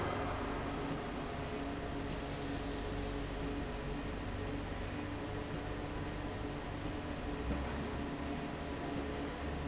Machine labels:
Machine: slide rail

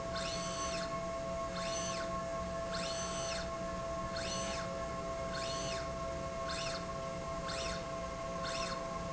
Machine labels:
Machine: slide rail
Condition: normal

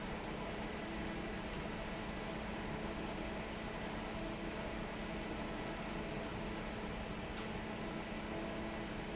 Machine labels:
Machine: fan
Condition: normal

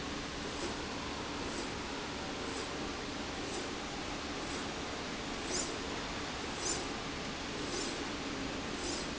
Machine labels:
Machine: slide rail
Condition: normal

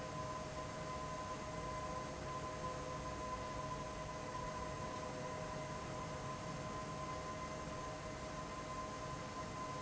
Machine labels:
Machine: fan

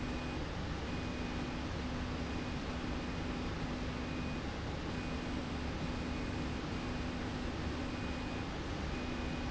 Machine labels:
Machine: slide rail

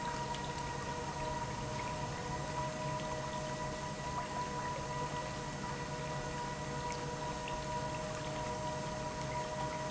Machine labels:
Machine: pump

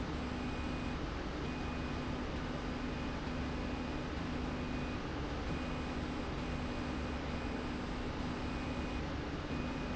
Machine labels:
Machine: slide rail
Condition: normal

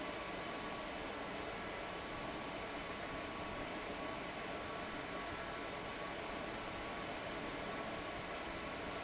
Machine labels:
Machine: fan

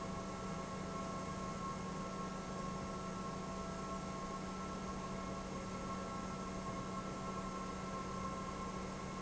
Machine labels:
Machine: pump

